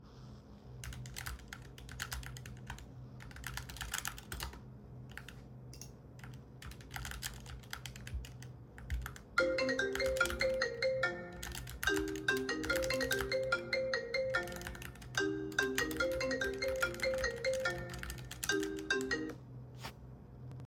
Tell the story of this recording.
I typed on a keyboard while a phone notification occurred.